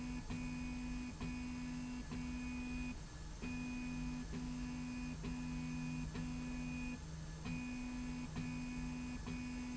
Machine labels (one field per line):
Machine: slide rail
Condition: normal